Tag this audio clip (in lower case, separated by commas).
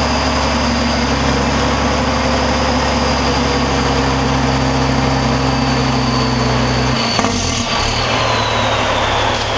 air brake, vehicle